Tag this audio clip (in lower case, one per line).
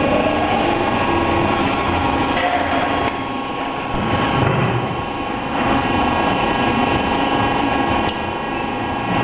lathe spinning